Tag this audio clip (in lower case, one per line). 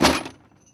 tools